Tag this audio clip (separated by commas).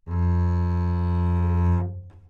Music, Musical instrument, Bowed string instrument